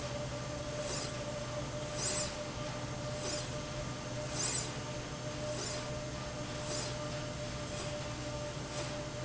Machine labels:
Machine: slide rail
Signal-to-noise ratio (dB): -6 dB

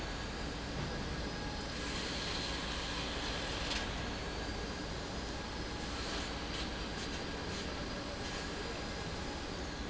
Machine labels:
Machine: pump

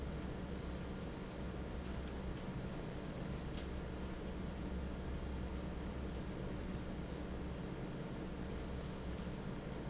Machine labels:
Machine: fan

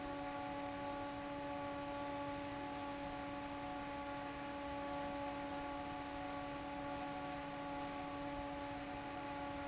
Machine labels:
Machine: fan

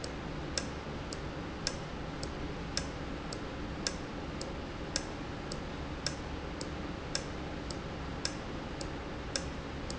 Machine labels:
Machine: valve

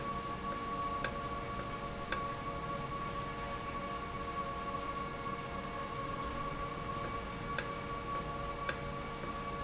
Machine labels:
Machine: valve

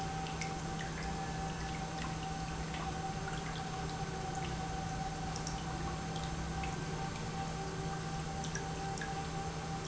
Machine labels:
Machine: pump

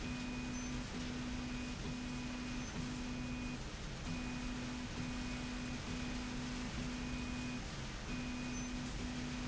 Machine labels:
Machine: slide rail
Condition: normal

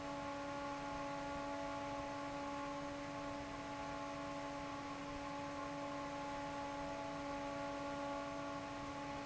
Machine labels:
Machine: fan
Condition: normal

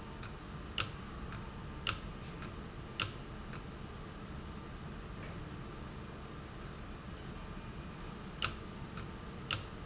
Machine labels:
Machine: valve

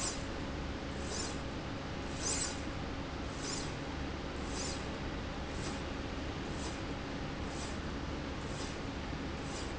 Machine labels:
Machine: slide rail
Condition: normal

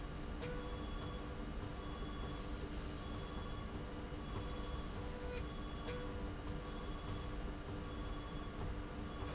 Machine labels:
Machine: slide rail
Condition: normal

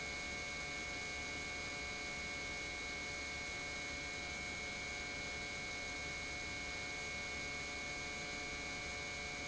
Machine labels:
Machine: pump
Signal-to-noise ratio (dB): 6 dB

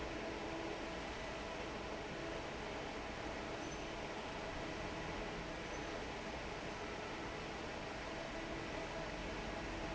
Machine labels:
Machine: fan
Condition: normal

